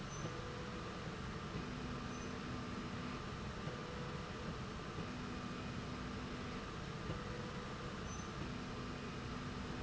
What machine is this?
slide rail